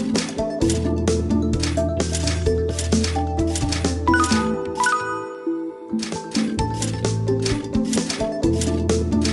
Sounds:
Music

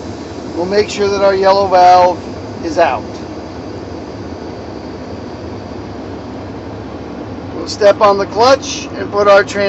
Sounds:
Vehicle, Speech, Car

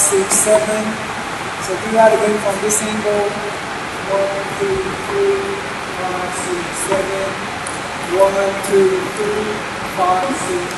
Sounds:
Speech

